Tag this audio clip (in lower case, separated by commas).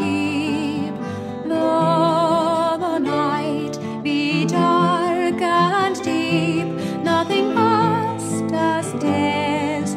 music